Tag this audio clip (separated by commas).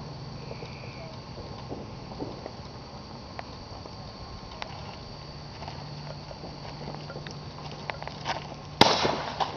outside, rural or natural, Fireworks